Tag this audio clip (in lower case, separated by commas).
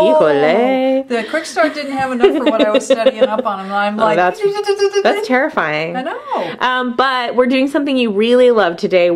speech